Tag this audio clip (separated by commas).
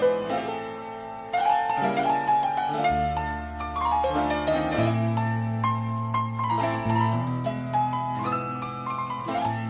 Harpsichord, Music